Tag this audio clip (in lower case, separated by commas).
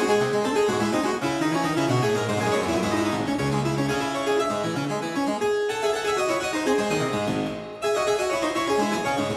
playing harpsichord